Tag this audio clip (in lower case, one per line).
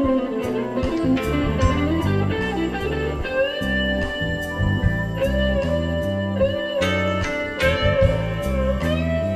inside a large room or hall
music